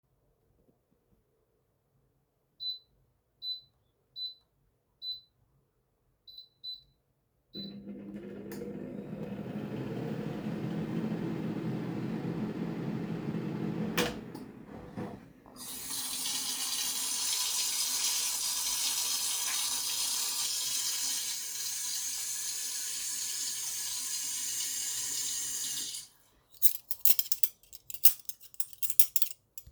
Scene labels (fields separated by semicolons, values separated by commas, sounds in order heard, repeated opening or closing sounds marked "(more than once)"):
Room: kitchen; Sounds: microwave, running water, cutlery and dishes